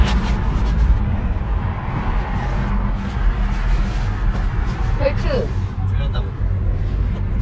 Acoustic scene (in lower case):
car